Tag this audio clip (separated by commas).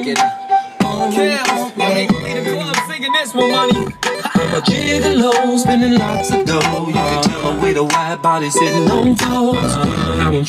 Music